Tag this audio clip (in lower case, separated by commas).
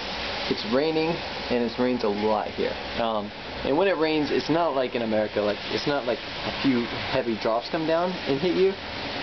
speech, rain on surface